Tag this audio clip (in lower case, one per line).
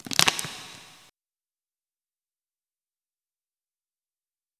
crushing